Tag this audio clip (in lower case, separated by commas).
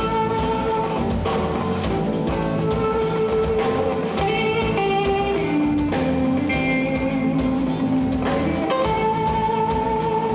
music